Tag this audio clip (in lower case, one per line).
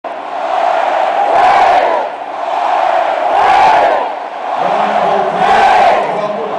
mantra
speech